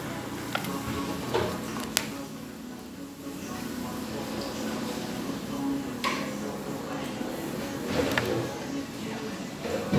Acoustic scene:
cafe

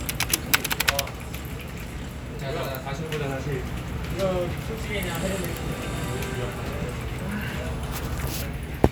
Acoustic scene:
crowded indoor space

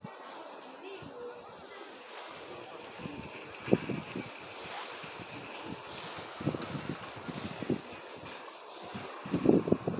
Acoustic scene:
residential area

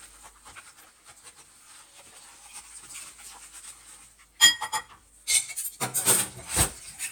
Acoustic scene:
kitchen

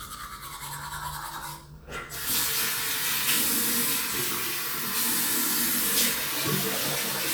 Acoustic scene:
restroom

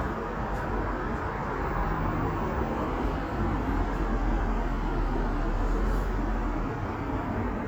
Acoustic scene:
street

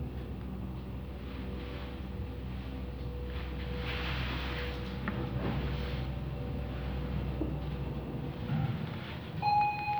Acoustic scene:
elevator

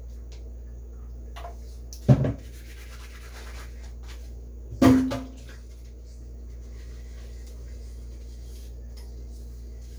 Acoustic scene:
kitchen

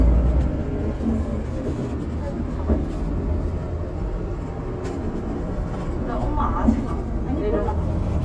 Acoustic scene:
bus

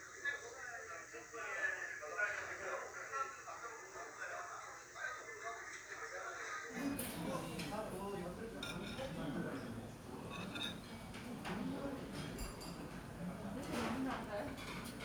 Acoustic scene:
restaurant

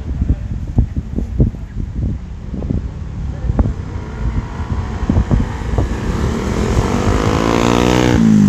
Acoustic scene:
street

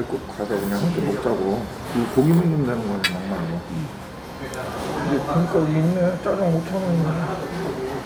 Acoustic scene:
crowded indoor space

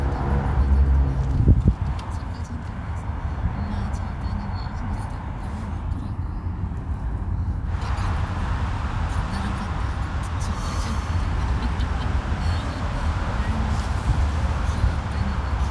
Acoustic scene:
car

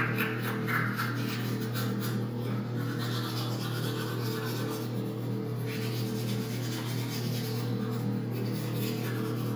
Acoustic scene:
restroom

